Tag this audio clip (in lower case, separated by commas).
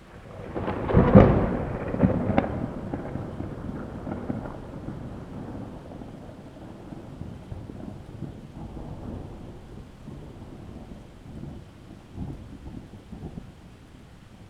water, thunder, thunderstorm, rain